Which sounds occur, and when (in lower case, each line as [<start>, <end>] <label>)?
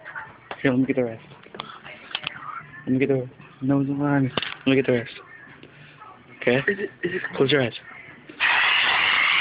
[0.00, 0.42] female speech
[0.00, 8.32] music
[0.42, 0.59] generic impact sounds
[0.59, 1.19] male speech
[1.29, 1.56] generic impact sounds
[1.58, 2.96] female speech
[2.10, 2.37] generic impact sounds
[2.84, 3.28] male speech
[3.32, 3.53] generic impact sounds
[3.61, 4.37] male speech
[4.29, 4.48] generic impact sounds
[4.42, 5.51] female speech
[4.63, 5.06] male speech
[5.53, 5.70] generic impact sounds
[5.61, 6.06] gasp
[5.99, 6.66] male speech
[6.57, 6.90] human voice
[6.65, 7.28] laughter
[7.00, 7.26] human voice
[7.16, 7.30] generic impact sounds
[7.23, 7.71] male speech
[7.79, 8.20] female speech
[8.40, 9.40] spray